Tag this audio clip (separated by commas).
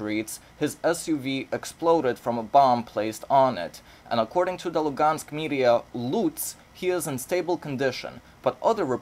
Speech